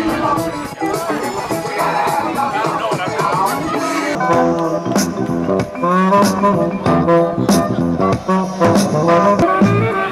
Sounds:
Music, Speech

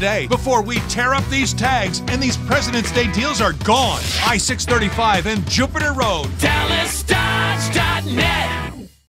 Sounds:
Music, Speech

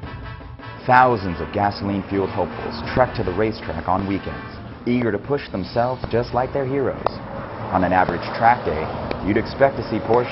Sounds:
Vehicle, Car, Music, Speech

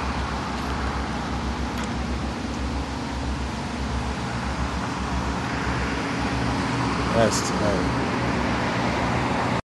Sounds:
Vehicle, Car, Speech

